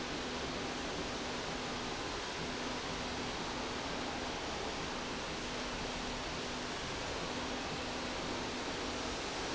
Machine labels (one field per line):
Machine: slide rail